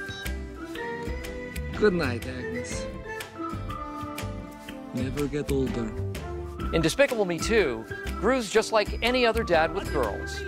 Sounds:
Music, Speech

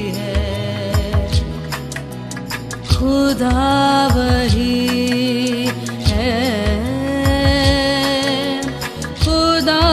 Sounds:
Music of Bollywood

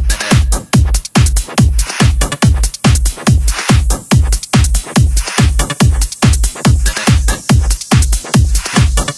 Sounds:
Music, Techno, Electronic music

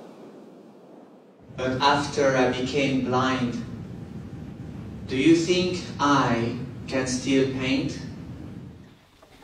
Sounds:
Speech

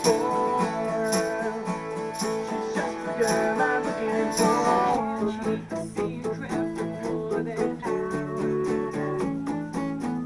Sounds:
Music, Singing

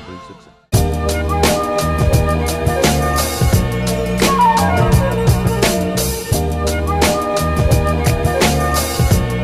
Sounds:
Music, Funk

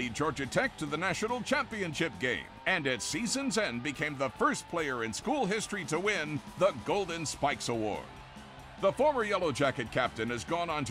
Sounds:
Speech

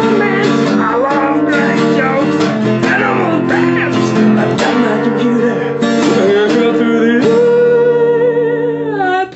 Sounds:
Musical instrument, Music, Guitar, Acoustic guitar, Plucked string instrument

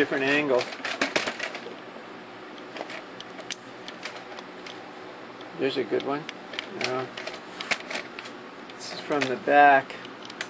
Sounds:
Speech

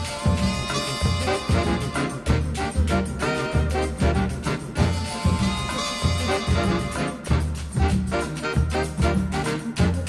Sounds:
Music

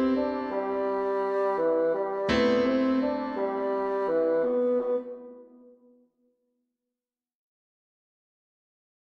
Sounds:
playing bassoon

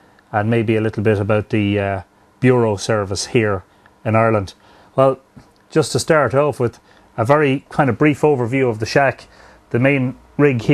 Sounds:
Speech

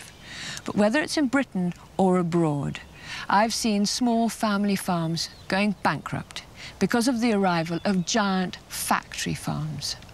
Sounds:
Speech

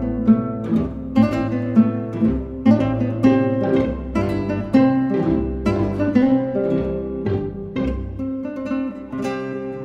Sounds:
Musical instrument, Music, Plucked string instrument, Acoustic guitar, Guitar

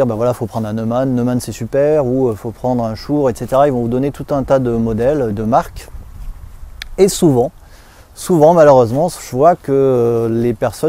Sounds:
Speech

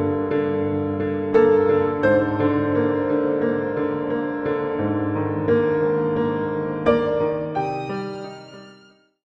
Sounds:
Music

